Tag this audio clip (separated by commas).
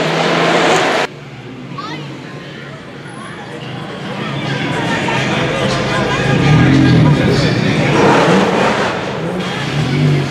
Speech, Crowd